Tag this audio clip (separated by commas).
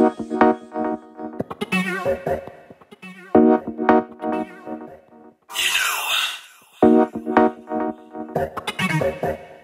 Synthesizer, Music